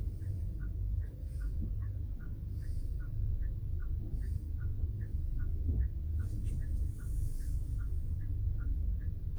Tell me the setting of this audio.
car